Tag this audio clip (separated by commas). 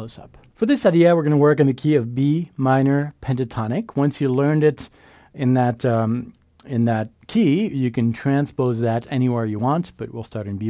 Speech